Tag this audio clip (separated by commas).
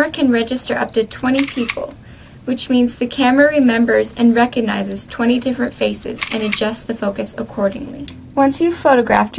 Speech, Camera